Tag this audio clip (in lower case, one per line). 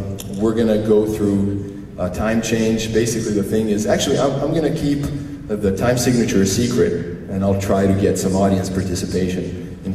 speech